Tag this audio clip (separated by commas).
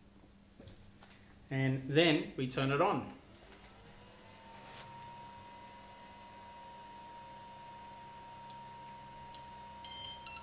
Printer, Speech